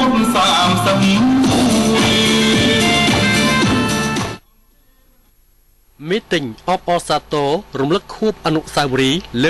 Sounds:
music, male speech, speech

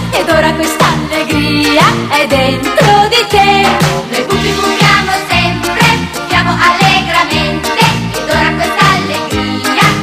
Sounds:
theme music, music

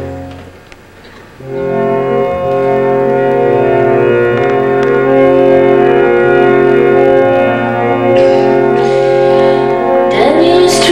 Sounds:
music, inside a large room or hall

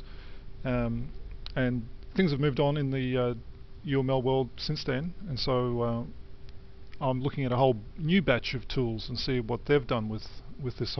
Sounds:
speech

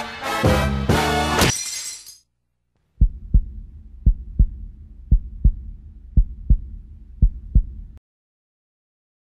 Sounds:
music

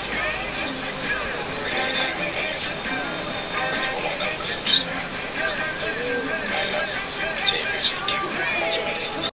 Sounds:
speech, music

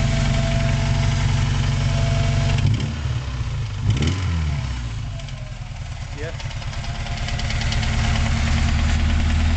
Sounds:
car engine knocking

